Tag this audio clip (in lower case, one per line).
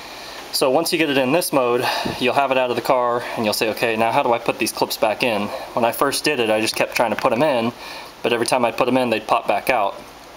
speech